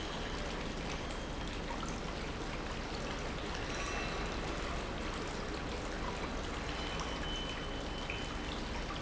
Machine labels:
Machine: pump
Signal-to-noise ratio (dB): -6 dB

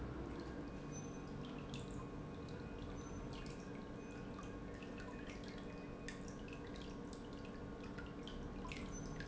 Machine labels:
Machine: pump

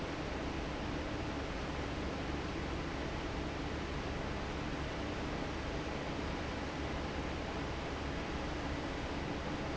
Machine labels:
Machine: fan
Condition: normal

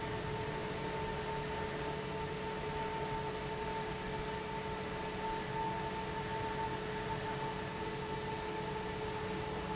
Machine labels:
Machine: fan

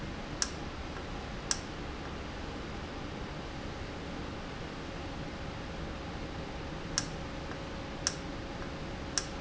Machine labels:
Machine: valve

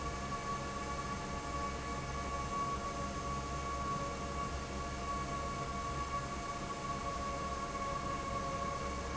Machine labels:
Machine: fan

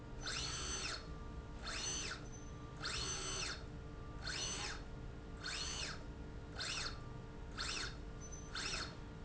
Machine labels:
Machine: slide rail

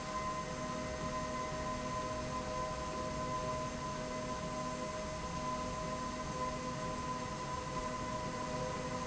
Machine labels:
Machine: slide rail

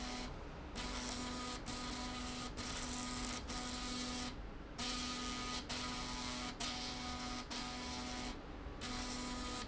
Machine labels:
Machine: slide rail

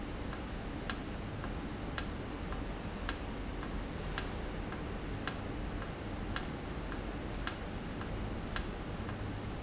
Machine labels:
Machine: valve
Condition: normal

